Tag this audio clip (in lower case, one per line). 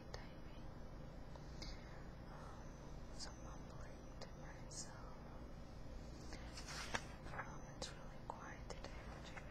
speech